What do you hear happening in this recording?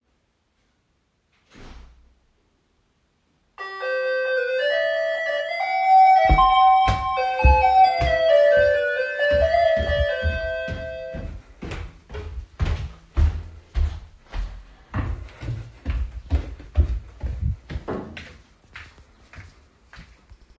A door closed in the distance. Then the bell rang, so I walked down the stairs to the door.